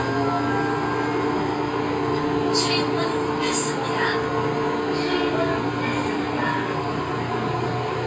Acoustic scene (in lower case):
subway train